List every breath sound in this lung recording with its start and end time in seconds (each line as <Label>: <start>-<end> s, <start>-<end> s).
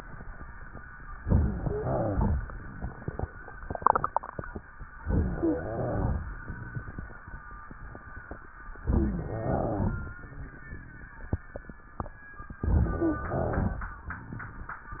Inhalation: 1.20-2.03 s, 5.07-5.92 s, 8.80-9.49 s, 12.62-13.30 s
Exhalation: 2.03-2.52 s, 5.96-6.64 s, 9.47-10.15 s, 13.30-13.98 s
Rhonchi: 1.20-2.03 s, 5.07-5.92 s, 8.80-9.49 s, 12.62-13.30 s
Crackles: 2.03-2.52 s, 5.96-6.64 s, 9.47-10.15 s, 13.30-13.98 s